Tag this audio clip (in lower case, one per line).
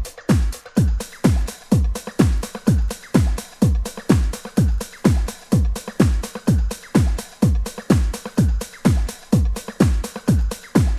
music
electronic music